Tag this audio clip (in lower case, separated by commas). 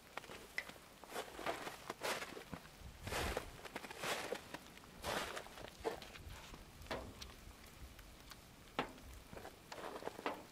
footsteps on snow